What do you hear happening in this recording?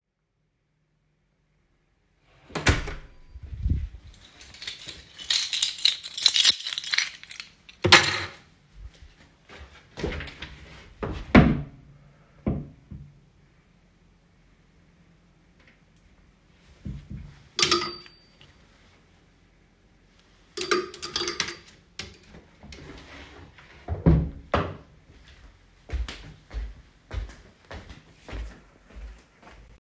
I opened the door and went inside my home putting keys on the shelve, I then opened my wardrobe and hanged my hoodie on the clothes hangers, I then went further inside my home